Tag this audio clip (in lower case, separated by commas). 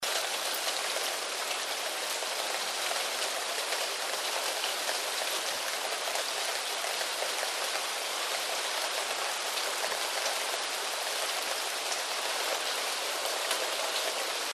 rain, water